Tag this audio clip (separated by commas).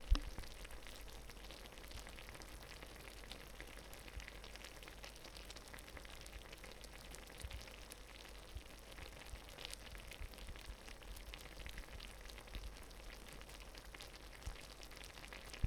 Liquid, Boiling